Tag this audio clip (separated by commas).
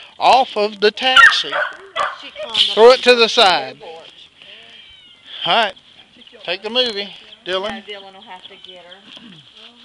Caterwaul, Cat, Animal, Meow, Speech, Domestic animals